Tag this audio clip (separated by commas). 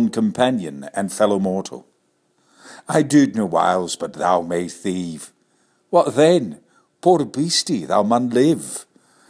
Speech